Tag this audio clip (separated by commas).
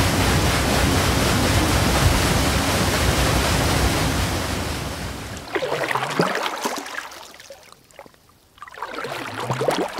Sound effect